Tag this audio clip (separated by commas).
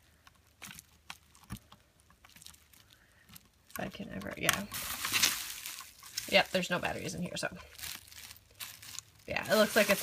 Speech, inside a small room